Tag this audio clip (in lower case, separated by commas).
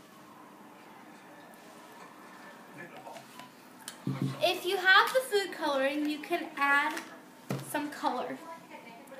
gurgling, speech